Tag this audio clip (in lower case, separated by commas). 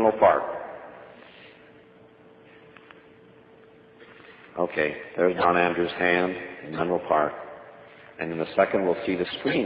speech